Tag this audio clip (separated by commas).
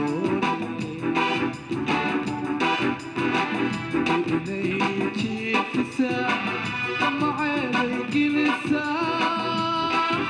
Singing, Music